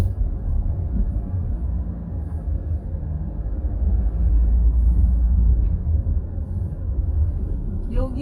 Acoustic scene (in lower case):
car